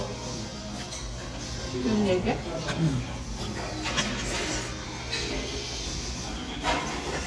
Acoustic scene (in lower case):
restaurant